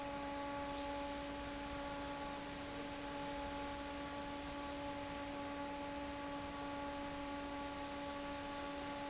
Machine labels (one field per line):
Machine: fan